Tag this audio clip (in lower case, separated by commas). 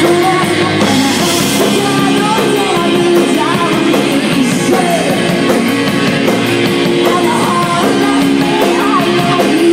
music